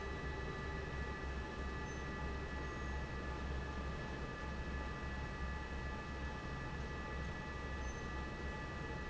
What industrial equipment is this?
fan